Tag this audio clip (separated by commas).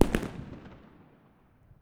Explosion, Fireworks